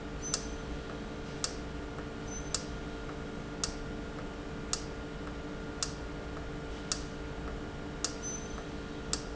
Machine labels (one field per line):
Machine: valve